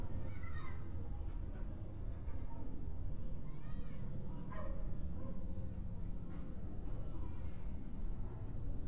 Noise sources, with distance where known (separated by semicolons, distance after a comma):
dog barking or whining, far